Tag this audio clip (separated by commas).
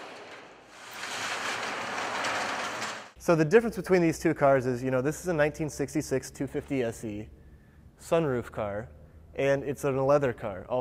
Speech